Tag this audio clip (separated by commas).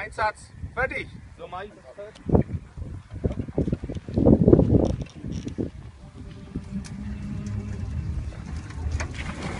Speech, Gurgling